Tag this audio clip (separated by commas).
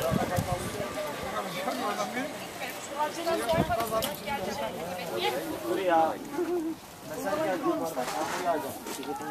Speech